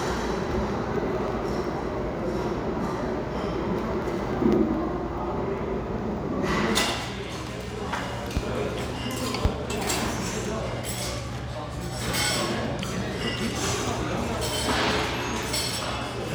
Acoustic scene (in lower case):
restaurant